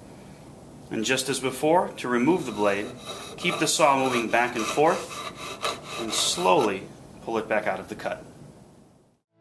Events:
[0.00, 9.18] background noise
[0.85, 2.99] male speech
[2.50, 6.93] sawing
[3.28, 5.01] male speech
[5.96, 6.88] male speech
[7.22, 8.54] male speech
[9.31, 9.40] background noise

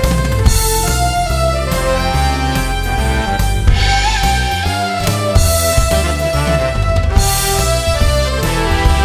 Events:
[0.00, 9.04] music

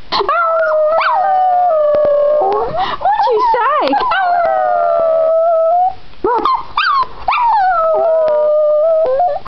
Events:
[0.00, 9.45] background noise
[3.02, 4.07] female speech
[7.26, 7.66] dog
[7.38, 9.37] howl
[8.99, 9.06] tick

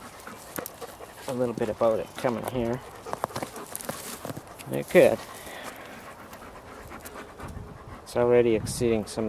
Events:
[0.00, 9.25] background noise
[0.52, 0.89] generic impact sounds
[1.24, 2.01] man speaking
[2.17, 2.83] man speaking
[3.08, 3.49] generic impact sounds
[3.71, 4.39] generic impact sounds
[4.63, 5.19] man speaking
[5.12, 5.66] breathing
[5.69, 7.47] pant
[6.24, 6.46] generic impact sounds
[6.94, 7.18] generic impact sounds
[7.30, 7.99] wind noise (microphone)
[7.34, 7.50] generic impact sounds
[7.64, 8.09] pant
[8.15, 9.25] man speaking
[8.52, 9.01] wind noise (microphone)

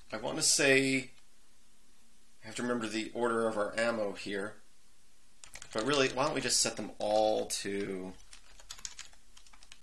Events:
[0.00, 1.05] man speaking
[0.00, 9.82] background noise
[1.09, 1.19] clicking
[2.40, 3.04] man speaking
[3.14, 4.57] man speaking
[5.40, 6.19] computer keyboard
[5.71, 6.88] man speaking
[6.96, 8.23] man speaking
[6.97, 7.48] computer keyboard
[7.62, 7.76] computer keyboard
[8.25, 9.14] computer keyboard
[9.32, 9.82] computer keyboard

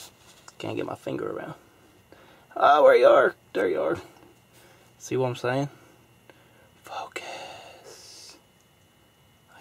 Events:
[0.00, 0.36] surface contact
[0.00, 9.60] mechanisms
[0.42, 0.48] tick
[0.58, 1.54] male speech
[2.06, 2.43] breathing
[2.52, 3.32] male speech
[3.52, 4.04] male speech
[4.12, 4.20] clicking
[4.51, 4.96] breathing
[4.98, 5.63] male speech
[6.25, 6.32] clicking
[6.30, 6.66] surface contact
[6.77, 8.34] whispering
[8.54, 8.63] clicking
[8.77, 8.87] clicking

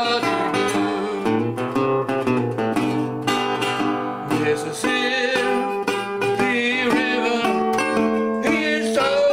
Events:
[0.00, 1.25] male singing
[0.00, 9.32] music
[4.26, 5.46] male singing
[6.33, 7.60] male singing
[8.37, 9.32] male singing

